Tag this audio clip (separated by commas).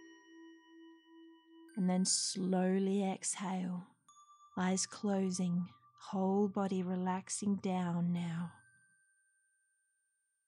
Speech, Music